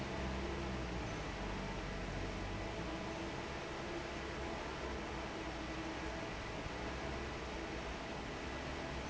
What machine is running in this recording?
fan